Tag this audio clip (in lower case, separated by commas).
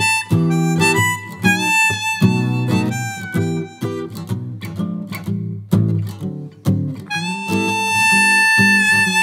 playing harmonica